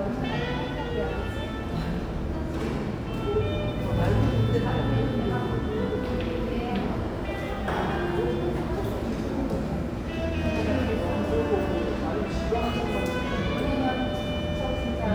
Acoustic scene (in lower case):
cafe